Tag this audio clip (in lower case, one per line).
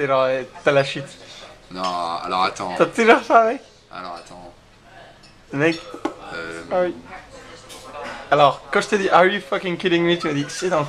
speech